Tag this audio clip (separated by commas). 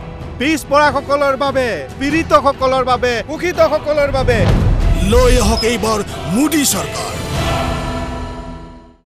Speech, Male speech